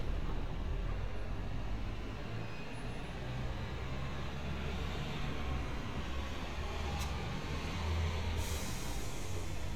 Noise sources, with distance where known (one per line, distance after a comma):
large-sounding engine